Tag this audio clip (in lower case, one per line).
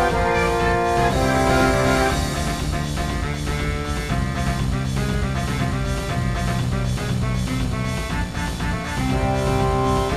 music